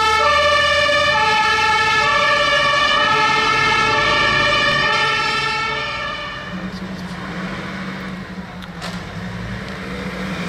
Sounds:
Air horn

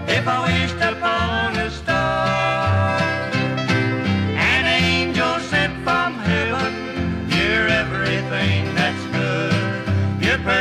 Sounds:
Country, Music

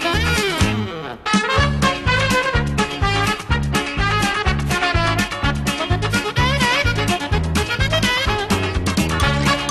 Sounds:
Music

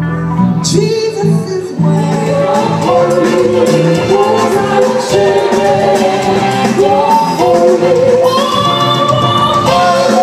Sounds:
Music, Blues

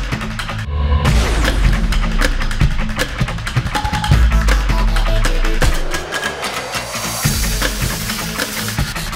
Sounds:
Music, Percussion

